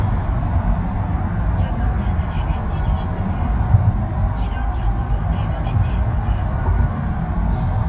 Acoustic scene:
car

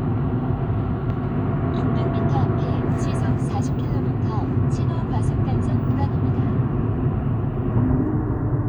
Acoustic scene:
car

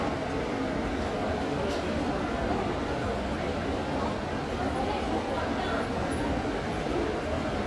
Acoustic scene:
subway station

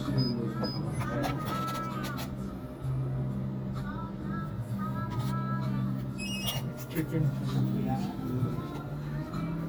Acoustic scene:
cafe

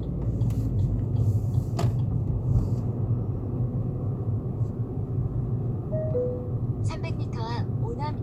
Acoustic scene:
car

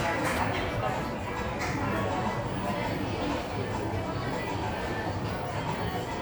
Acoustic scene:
cafe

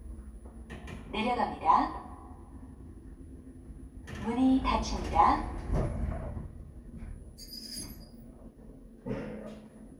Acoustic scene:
elevator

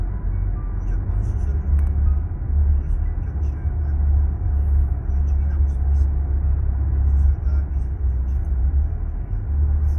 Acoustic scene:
car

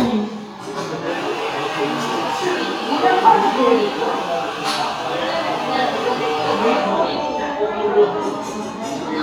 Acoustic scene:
cafe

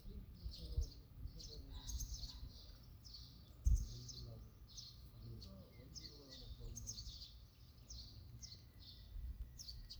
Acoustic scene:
park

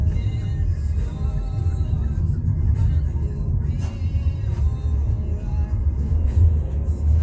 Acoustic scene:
car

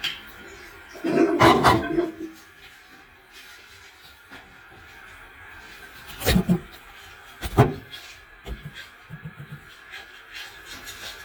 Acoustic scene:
restroom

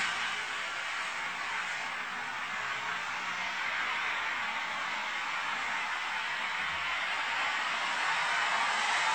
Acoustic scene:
street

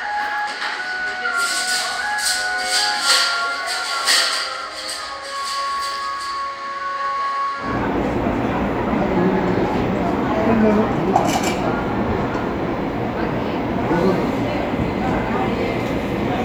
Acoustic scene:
cafe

